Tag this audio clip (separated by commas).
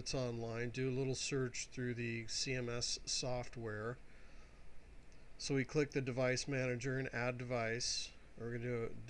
Speech